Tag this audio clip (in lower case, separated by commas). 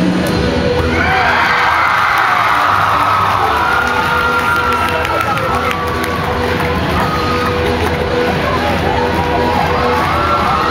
cheering, crowd